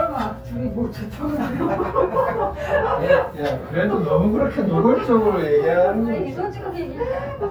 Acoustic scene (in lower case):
elevator